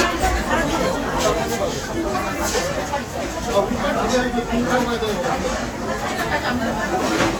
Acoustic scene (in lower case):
restaurant